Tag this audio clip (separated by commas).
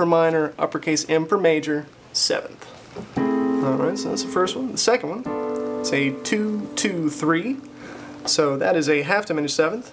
Music, Keyboard (musical), Piano, Musical instrument